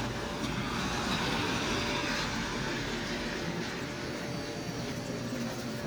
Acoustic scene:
residential area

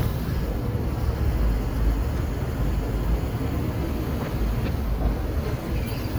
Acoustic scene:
residential area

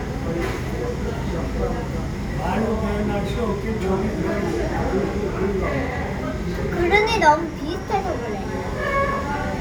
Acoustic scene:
crowded indoor space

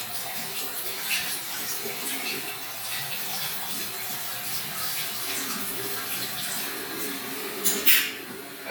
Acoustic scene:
restroom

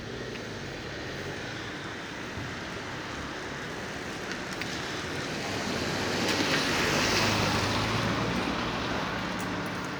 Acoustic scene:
residential area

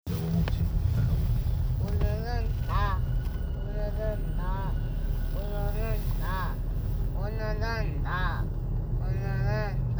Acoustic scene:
car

